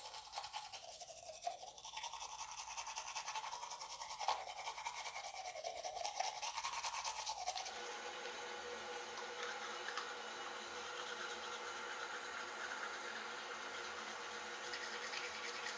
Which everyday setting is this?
restroom